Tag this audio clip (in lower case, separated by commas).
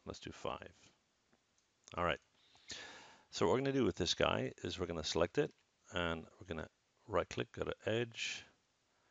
speech, inside a small room